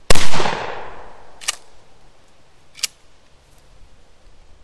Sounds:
Gunshot, Explosion

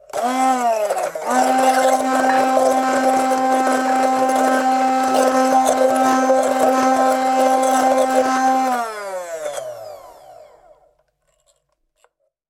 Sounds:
Domestic sounds

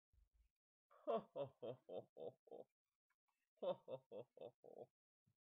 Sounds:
Human voice, Laughter

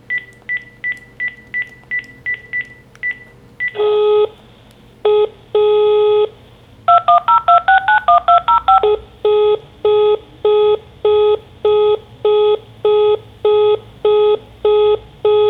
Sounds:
Alarm, Telephone

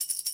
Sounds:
Music, Tambourine, Musical instrument, Percussion

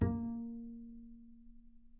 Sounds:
Musical instrument, Music, Bowed string instrument

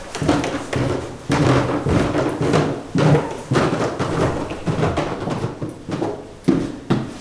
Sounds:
Walk

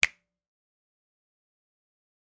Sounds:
Hands, Finger snapping

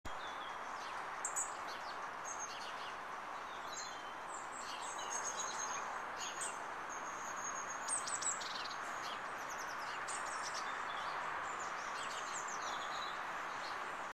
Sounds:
Wild animals, Bird, Bird vocalization, Animal

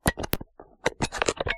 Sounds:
Alarm, Telephone

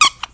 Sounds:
Squeak

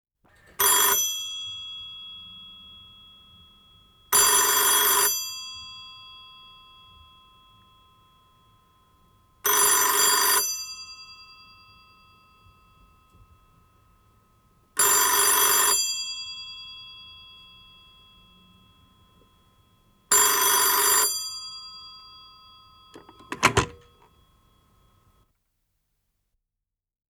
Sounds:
Telephone, Alarm

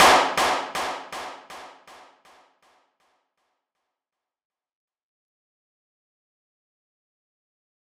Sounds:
Clapping, Hands

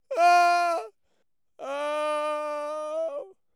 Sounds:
Human voice

